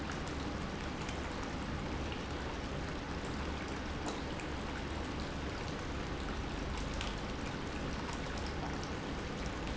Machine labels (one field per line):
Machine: pump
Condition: normal